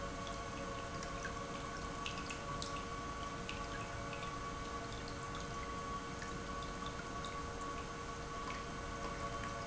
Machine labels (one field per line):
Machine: pump